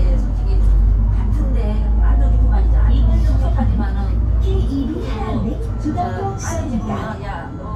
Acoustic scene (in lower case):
bus